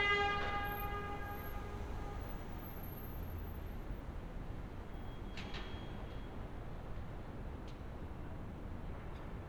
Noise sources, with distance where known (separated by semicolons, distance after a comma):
car horn, near